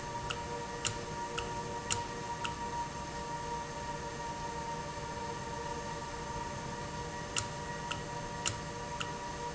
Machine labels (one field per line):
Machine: valve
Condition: normal